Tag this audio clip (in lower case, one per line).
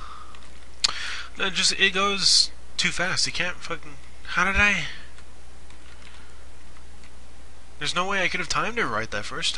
speech